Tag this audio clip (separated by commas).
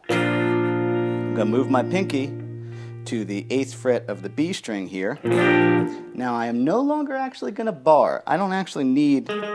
Guitar, Music, Musical instrument, Rock and roll, Electric guitar, Plucked string instrument, Speech